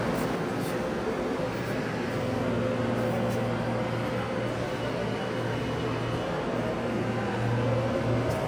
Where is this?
in a subway station